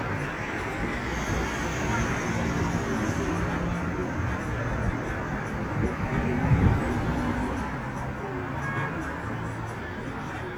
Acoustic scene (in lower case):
street